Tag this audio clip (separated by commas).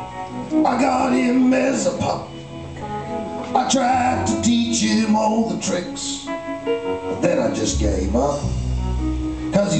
Music